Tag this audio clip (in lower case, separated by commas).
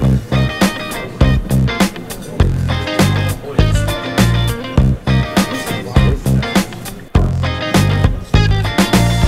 music, speech